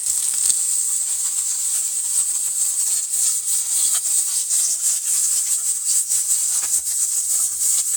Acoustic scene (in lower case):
kitchen